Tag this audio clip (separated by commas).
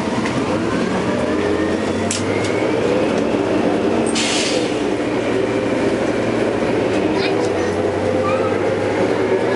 Vehicle